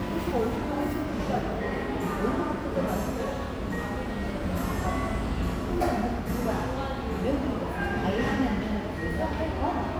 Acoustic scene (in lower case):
cafe